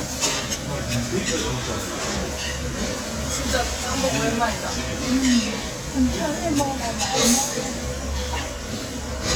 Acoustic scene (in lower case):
restaurant